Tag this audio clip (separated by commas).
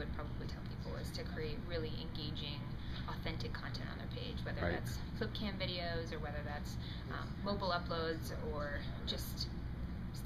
Speech